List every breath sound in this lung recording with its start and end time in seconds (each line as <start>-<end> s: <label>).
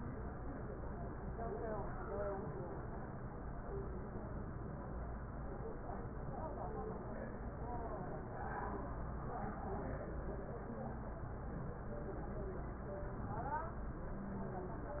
13.98-14.82 s: wheeze